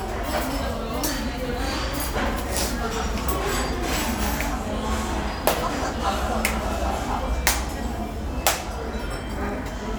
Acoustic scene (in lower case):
restaurant